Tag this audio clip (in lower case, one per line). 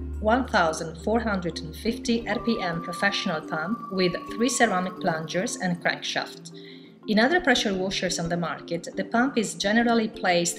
music
speech